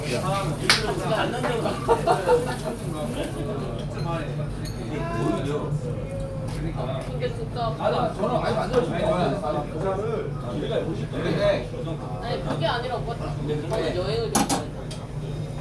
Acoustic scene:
crowded indoor space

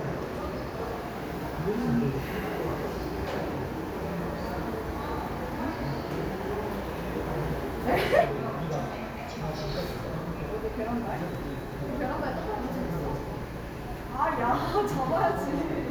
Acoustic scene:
subway station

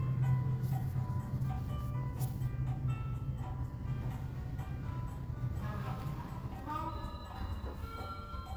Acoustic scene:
elevator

